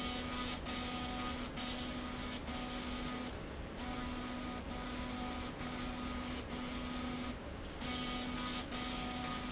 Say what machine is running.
slide rail